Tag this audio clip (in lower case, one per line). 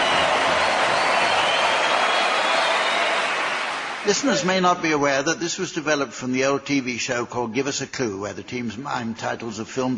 speech